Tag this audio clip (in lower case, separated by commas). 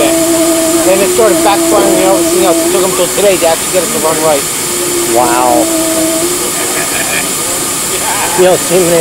speech